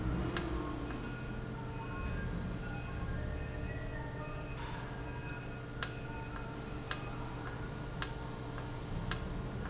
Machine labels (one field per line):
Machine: valve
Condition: normal